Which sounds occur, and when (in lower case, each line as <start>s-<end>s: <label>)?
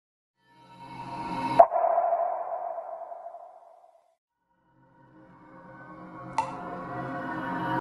4.8s-7.8s: music
6.3s-6.5s: drip